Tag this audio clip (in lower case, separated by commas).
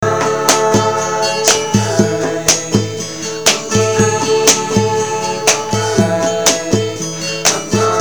plucked string instrument, human voice, music, acoustic guitar, guitar, musical instrument